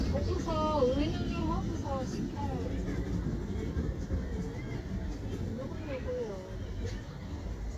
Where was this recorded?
in a residential area